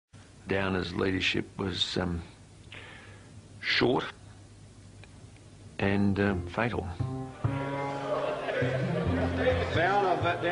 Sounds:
Music, Speech

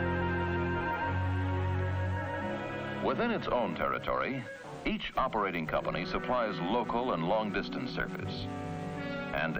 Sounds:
Music, Speech

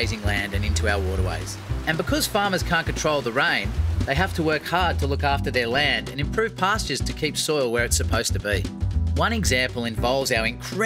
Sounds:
Music, Speech

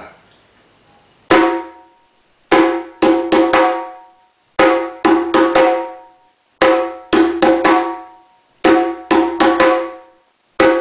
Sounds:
Percussion, Drum, Music, Musical instrument

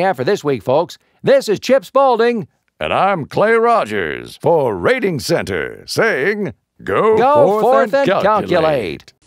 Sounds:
Television, Speech synthesizer

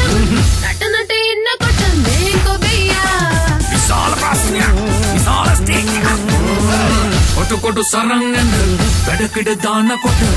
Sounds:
Music

